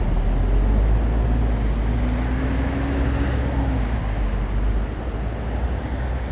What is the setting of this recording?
street